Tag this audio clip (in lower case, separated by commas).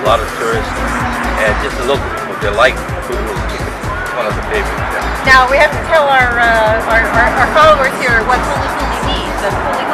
music, speech